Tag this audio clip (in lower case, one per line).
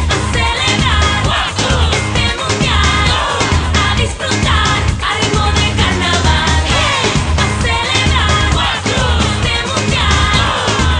music